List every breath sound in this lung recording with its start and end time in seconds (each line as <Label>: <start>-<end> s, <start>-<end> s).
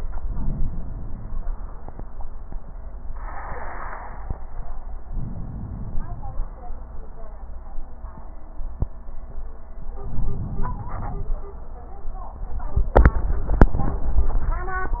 Inhalation: 5.07-6.57 s, 9.97-11.47 s